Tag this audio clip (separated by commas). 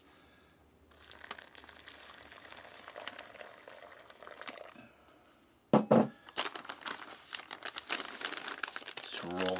inside a small room, Crumpling, Speech